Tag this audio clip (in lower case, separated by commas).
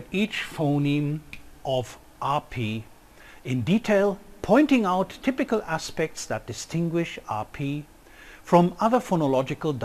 speech